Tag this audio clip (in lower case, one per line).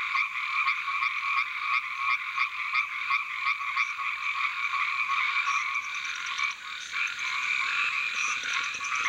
frog croaking